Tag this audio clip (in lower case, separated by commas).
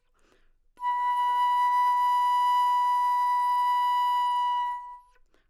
music, wind instrument, musical instrument